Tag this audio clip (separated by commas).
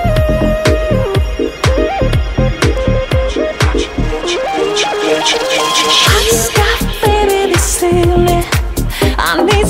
Music, Rhythm and blues